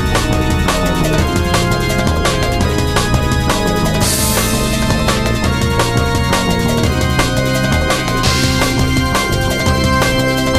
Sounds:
Music, Exciting music

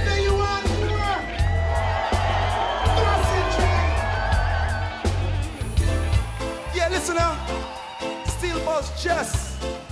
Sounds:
Music, Speech

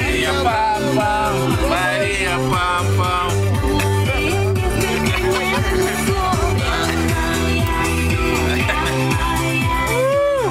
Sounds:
Music, Speech

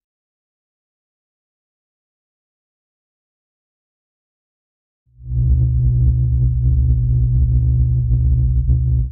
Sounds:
Music

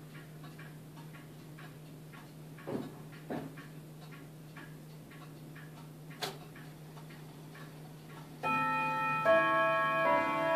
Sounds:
Tubular bells

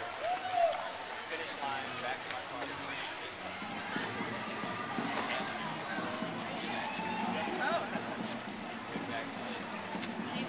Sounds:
Run, Speech

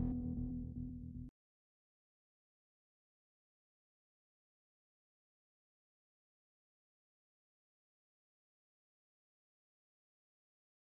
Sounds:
Music

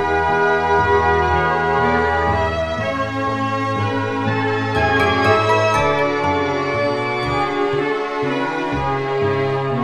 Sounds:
Theme music, Music

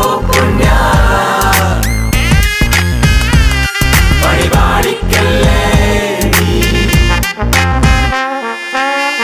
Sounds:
Trumpet, Brass instrument, Trombone

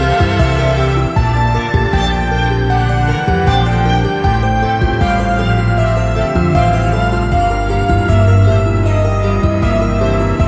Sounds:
Video game music, Music

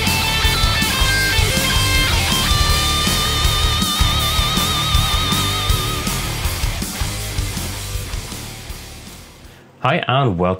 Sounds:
Heavy metal, Speech, Music

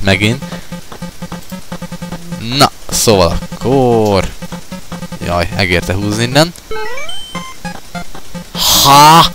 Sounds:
Speech, Music

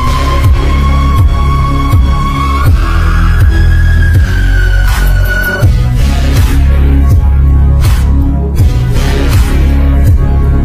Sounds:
Music

